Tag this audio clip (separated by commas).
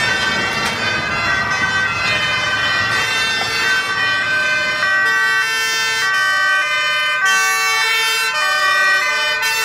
Emergency vehicle, Siren, Fire engine